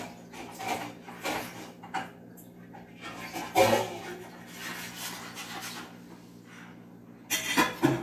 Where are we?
in a kitchen